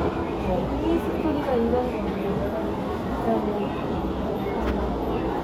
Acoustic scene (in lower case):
crowded indoor space